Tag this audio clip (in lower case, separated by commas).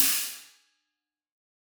hi-hat, music, percussion, musical instrument, cymbal